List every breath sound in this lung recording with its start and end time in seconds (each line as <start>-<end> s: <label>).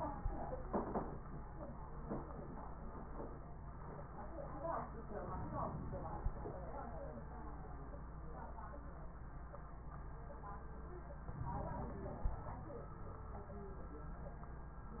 5.21-6.44 s: inhalation
5.21-6.44 s: crackles
11.32-12.55 s: inhalation
11.32-12.55 s: crackles